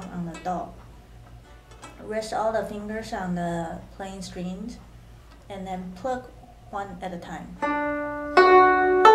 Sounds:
speech, music

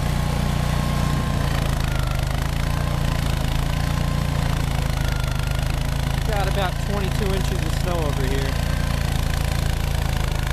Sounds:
lawn mowing, speech, lawn mower

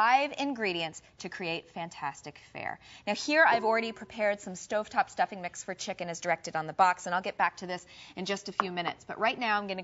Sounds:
speech

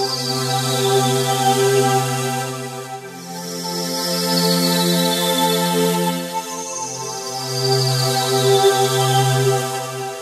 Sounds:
independent music, music

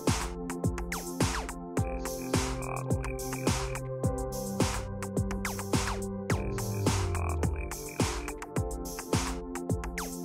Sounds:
music, pop music

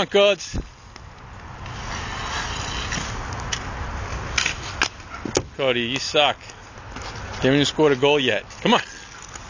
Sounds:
speech

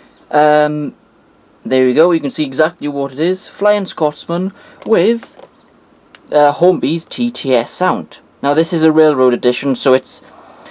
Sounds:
speech

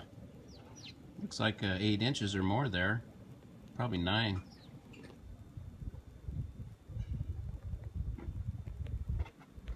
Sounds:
speech, animal, outside, urban or man-made

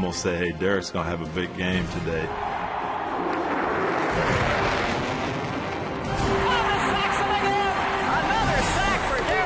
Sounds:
airplane flyby

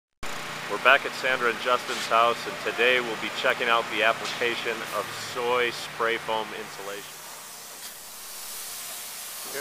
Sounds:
speech, spray

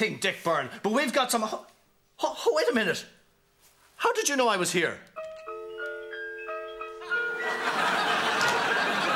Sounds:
speech, inside a small room, music

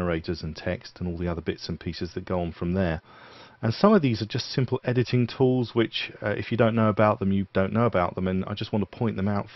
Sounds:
speech

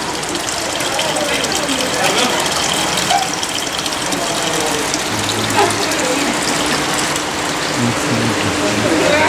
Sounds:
speech, water

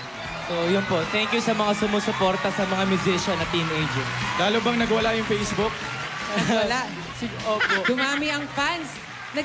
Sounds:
speech, jazz, music

